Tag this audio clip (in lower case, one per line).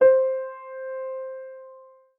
piano
musical instrument
keyboard (musical)
music